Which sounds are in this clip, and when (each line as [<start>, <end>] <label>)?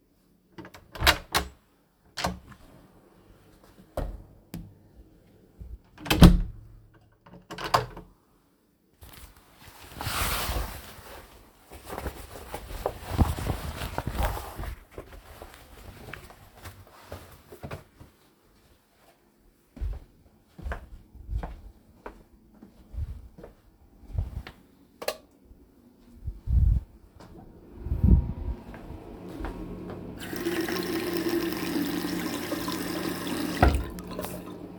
[0.14, 2.87] door
[1.24, 4.92] footsteps
[5.35, 8.79] door
[8.97, 24.58] footsteps
[24.74, 25.69] light switch
[26.12, 30.01] footsteps
[30.17, 34.64] running water